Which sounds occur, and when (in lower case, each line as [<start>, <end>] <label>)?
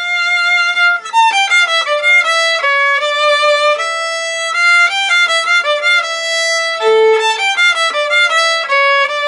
[0.01, 9.25] music